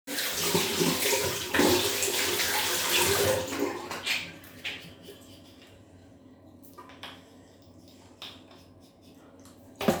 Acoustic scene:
restroom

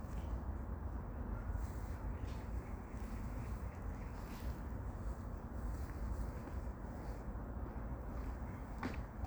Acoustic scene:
park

